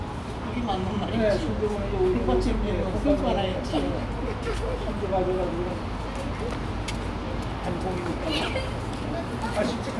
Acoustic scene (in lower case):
park